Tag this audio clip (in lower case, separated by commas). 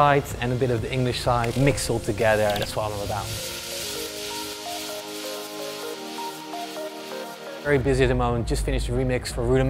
music, speech